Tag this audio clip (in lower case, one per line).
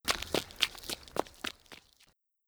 run